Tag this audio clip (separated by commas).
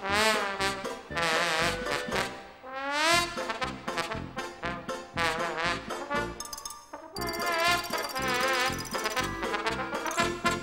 Soundtrack music, Music